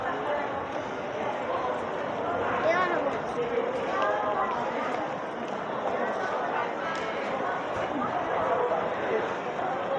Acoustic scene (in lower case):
crowded indoor space